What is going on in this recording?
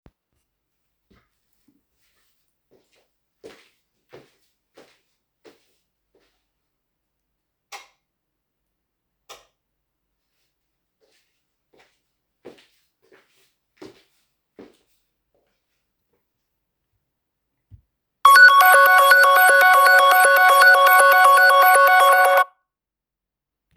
I turned off the living room light (switch click),then walked to the desk and phone started ring